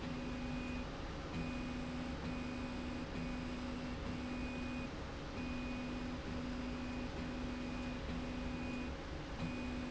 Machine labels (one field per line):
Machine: slide rail